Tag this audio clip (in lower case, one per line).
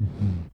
breathing
respiratory sounds